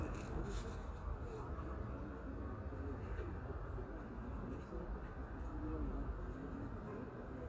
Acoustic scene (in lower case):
residential area